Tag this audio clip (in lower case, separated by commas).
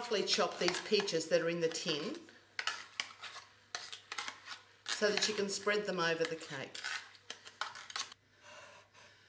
speech, inside a small room